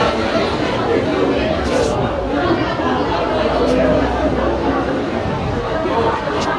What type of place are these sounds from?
subway station